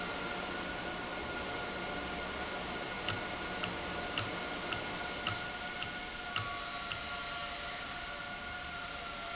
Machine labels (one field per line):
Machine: valve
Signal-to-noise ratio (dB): -6 dB